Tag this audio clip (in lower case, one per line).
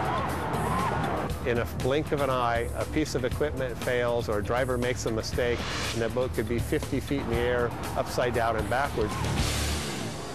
speech
music